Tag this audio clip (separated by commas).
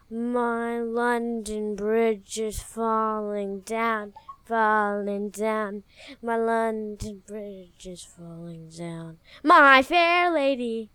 Singing, Human voice